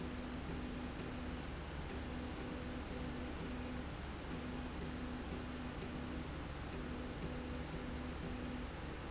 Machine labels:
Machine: slide rail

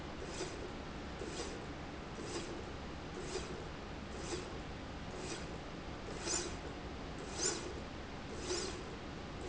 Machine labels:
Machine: slide rail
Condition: normal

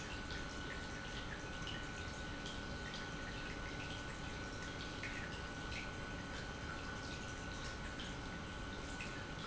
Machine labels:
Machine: pump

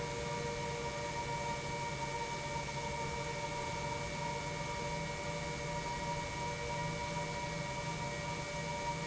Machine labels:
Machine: pump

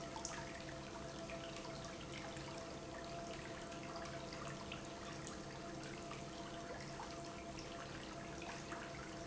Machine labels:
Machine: pump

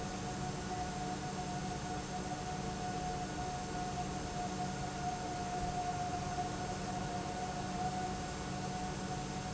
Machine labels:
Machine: pump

